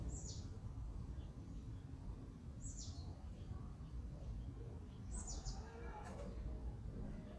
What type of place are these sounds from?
residential area